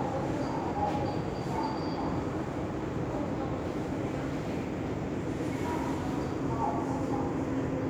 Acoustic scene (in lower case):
subway station